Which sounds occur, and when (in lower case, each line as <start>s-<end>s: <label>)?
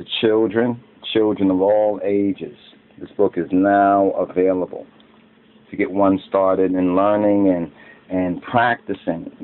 0.0s-9.4s: background noise
0.0s-0.8s: man speaking
1.0s-2.5s: man speaking
3.0s-4.9s: man speaking
5.7s-7.7s: man speaking
8.0s-9.4s: man speaking